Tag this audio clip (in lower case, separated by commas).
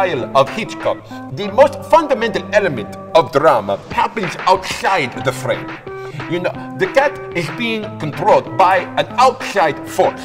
speech, harpsichord, music